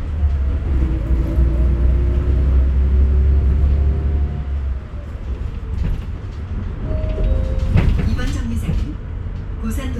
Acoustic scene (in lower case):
bus